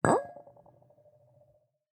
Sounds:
clink, glass

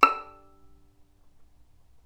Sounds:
music, bowed string instrument, musical instrument

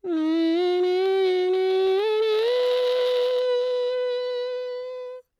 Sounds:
human voice, singing

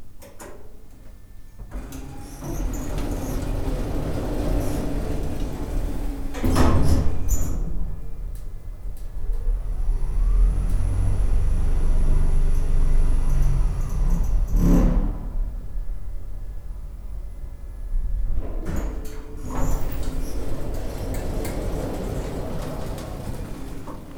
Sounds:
sliding door, domestic sounds, door

